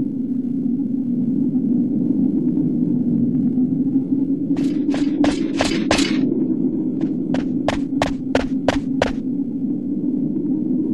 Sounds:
run

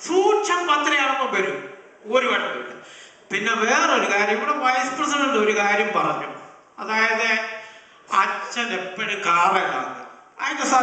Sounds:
narration, man speaking, speech

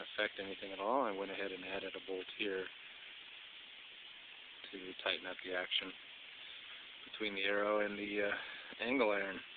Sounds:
speech

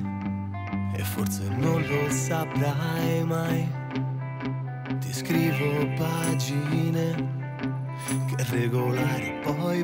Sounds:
sad music, music

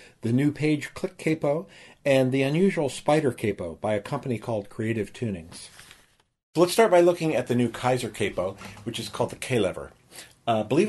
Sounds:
speech

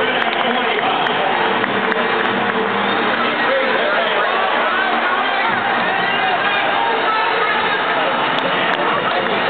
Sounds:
speech, male speech

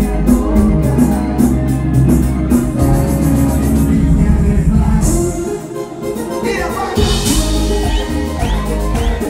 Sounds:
music, applause

